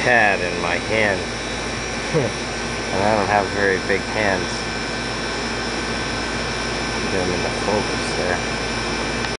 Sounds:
speech
outside, urban or man-made

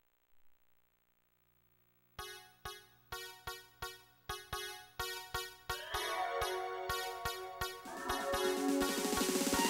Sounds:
sampler
music

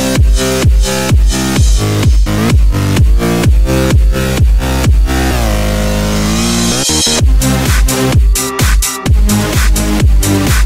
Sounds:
disco
music

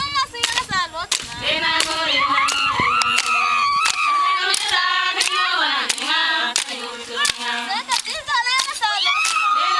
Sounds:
choir
female singing
speech

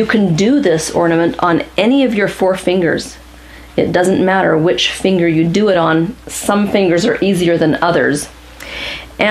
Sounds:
speech

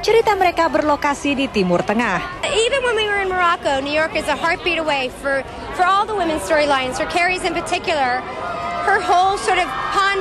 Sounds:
speech

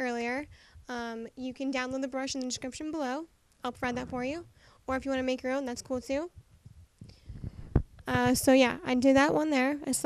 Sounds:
speech

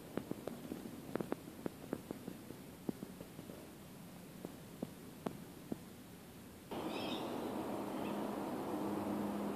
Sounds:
outside, rural or natural

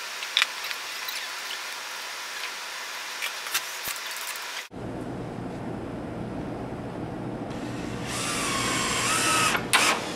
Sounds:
wood
inside a large room or hall

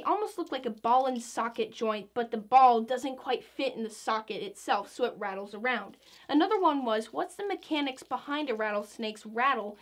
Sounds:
speech

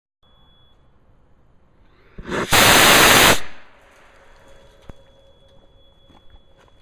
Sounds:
static

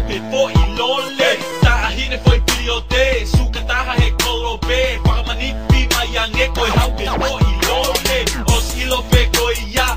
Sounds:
rapping
music

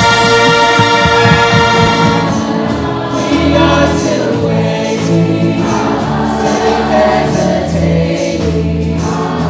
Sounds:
music
vocal music
singing
choir
male singing

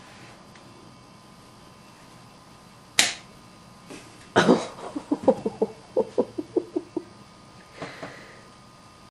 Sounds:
slap

